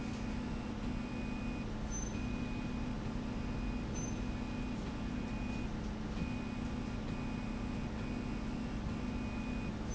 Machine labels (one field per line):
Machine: slide rail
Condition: normal